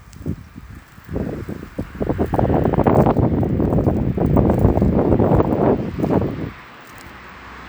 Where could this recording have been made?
on a street